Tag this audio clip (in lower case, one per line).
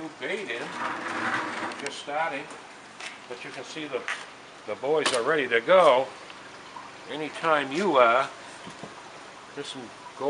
speech